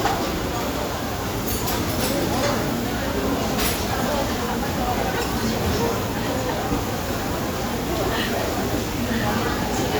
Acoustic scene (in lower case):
restaurant